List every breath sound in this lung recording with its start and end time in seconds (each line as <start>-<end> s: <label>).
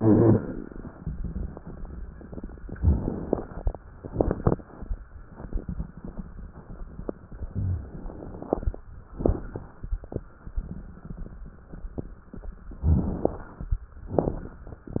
0.00-0.37 s: rhonchi
2.79-3.72 s: inhalation
2.79-3.72 s: crackles
4.02-4.63 s: exhalation
4.02-4.63 s: crackles
12.85-13.72 s: inhalation
12.85-13.72 s: crackles
14.15-14.87 s: exhalation
14.15-14.87 s: crackles